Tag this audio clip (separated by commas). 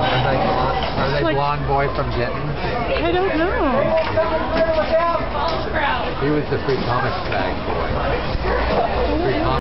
Speech